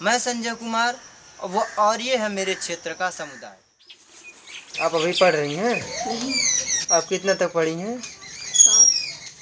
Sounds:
tweet, Bird, bird song

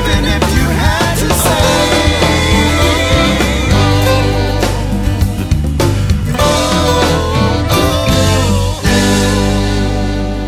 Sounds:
Singing, Music

